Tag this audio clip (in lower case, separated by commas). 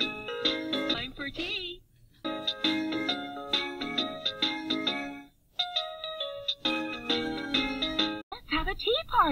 speech, music